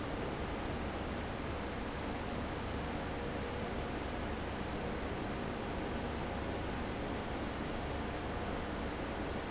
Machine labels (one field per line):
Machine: fan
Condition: abnormal